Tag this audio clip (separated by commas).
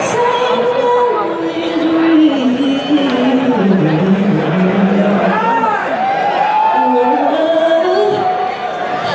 Female singing, Speech, Music